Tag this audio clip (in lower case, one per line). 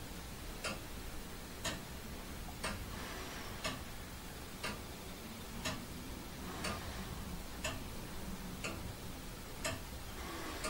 tick-tock